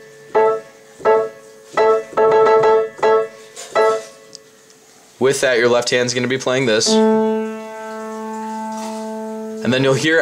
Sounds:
Musical instrument, Keyboard (musical), Music, Speech, Piano

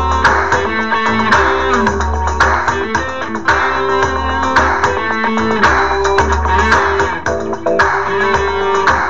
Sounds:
Plucked string instrument, Musical instrument, Music, Electric guitar

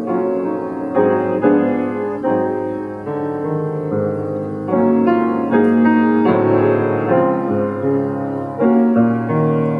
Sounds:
Music, Piano, Musical instrument

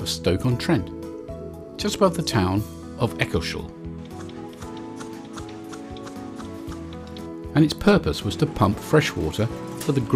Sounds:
Music, Speech

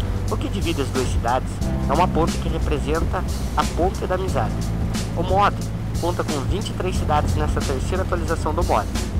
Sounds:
Music, Vehicle, Speech

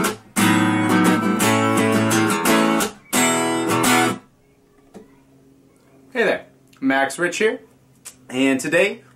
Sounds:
Music, Guitar, Acoustic guitar, Strum, Speech, Musical instrument, Plucked string instrument

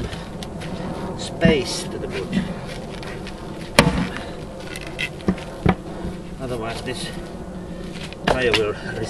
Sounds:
Speech, outside, rural or natural

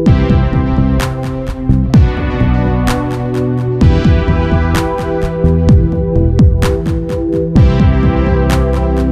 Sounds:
Music

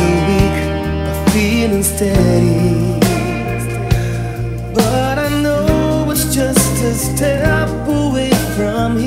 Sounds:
Music

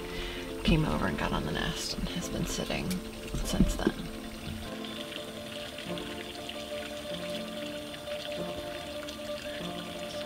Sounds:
Speech, outside, rural or natural, Music, Bird

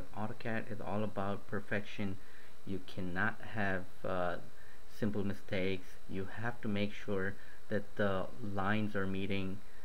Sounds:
Speech

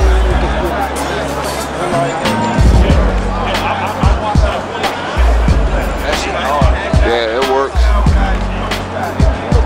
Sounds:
Music, Speech

